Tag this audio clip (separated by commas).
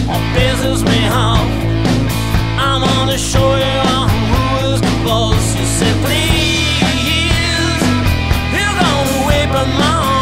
Music